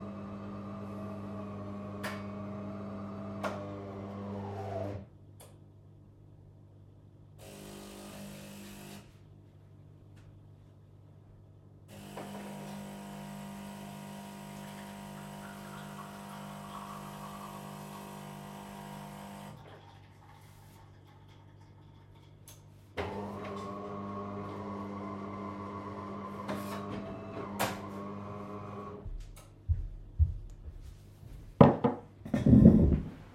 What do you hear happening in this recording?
I made myself a cup of coffee, walked back to my desk and set down